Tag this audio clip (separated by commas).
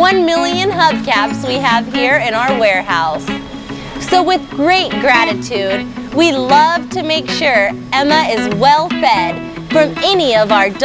Music, Speech